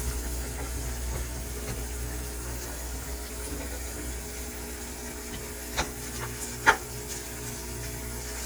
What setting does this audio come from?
kitchen